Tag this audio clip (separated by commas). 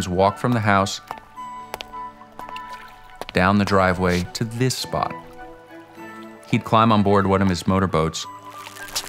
Vehicle, Boat, Music, Speech